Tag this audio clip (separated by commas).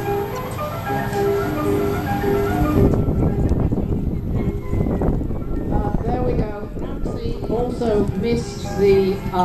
Speech, Music